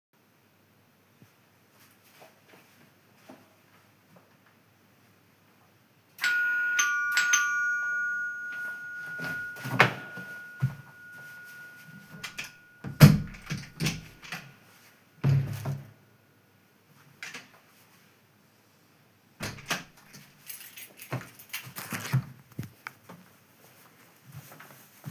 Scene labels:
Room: hallway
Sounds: footsteps, bell ringing, door (more than once), keys

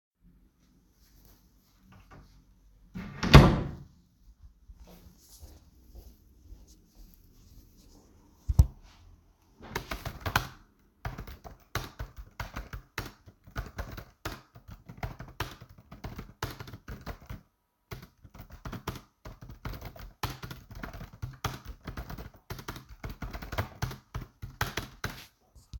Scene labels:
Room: office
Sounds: door, keyboard typing

